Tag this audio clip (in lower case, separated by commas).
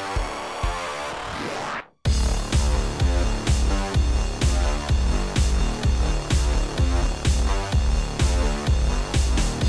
music